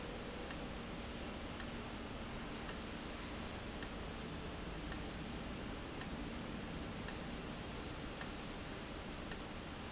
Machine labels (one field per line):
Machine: valve